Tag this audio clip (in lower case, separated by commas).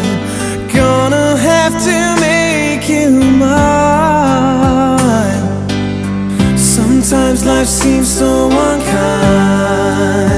music